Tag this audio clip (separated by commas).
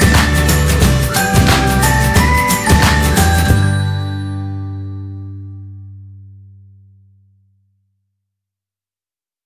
Music